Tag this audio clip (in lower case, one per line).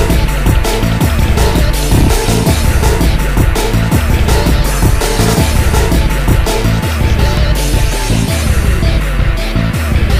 music